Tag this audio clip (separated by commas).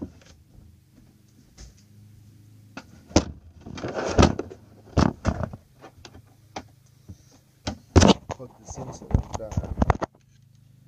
Speech